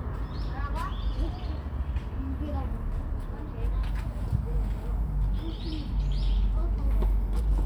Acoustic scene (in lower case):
park